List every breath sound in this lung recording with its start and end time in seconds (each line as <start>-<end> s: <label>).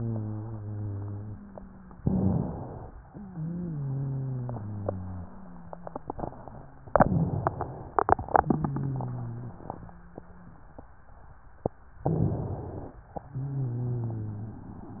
0.00-1.95 s: wheeze
1.97-2.97 s: inhalation
3.05-6.89 s: exhalation
3.05-6.89 s: wheeze
6.91-8.25 s: inhalation
8.25-10.80 s: exhalation
8.25-10.80 s: wheeze
11.98-13.03 s: inhalation
13.19-14.62 s: exhalation
13.19-14.62 s: wheeze